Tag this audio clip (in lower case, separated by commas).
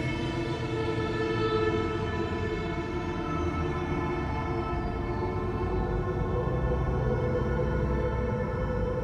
music